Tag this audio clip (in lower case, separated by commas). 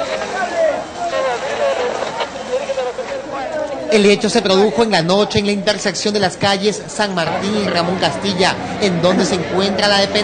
speech